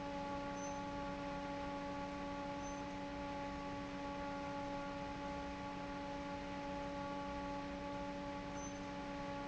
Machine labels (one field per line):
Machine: fan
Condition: normal